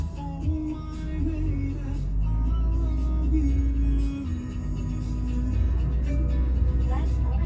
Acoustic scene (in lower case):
car